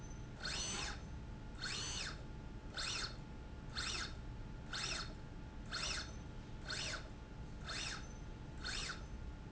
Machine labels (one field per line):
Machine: slide rail